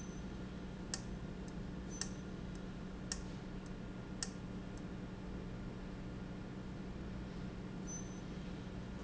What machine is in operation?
valve